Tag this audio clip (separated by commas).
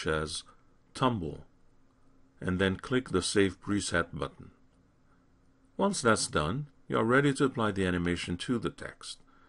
monologue